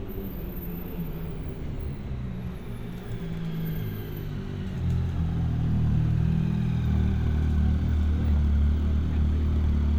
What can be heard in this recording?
medium-sounding engine